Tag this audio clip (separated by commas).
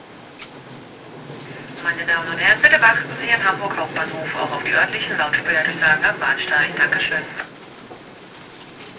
Vehicle, Rail transport, Train, Human voice